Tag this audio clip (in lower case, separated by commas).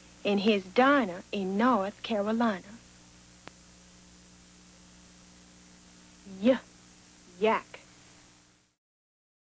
speech